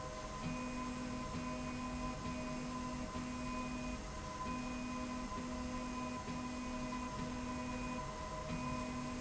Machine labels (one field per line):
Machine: slide rail